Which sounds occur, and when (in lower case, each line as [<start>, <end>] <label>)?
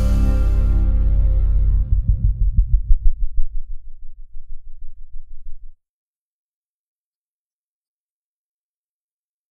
[0.00, 4.13] music